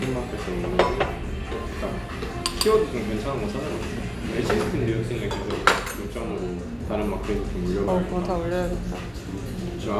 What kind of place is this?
restaurant